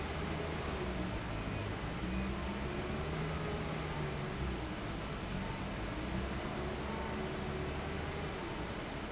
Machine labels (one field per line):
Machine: fan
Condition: abnormal